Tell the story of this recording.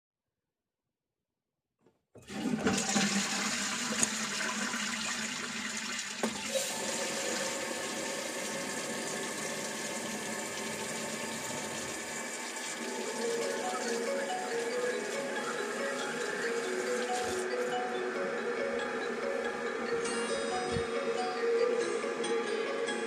I flushed the toilet after that I turned the sink on to wash my hands and then my phone rang